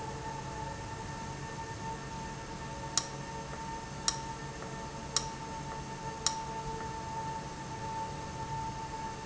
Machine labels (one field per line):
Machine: valve